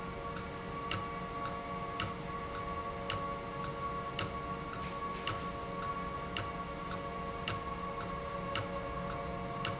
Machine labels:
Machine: valve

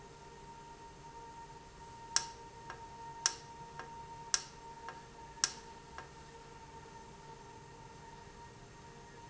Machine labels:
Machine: valve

